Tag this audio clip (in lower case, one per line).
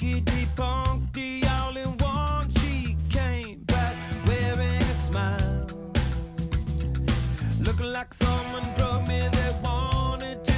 music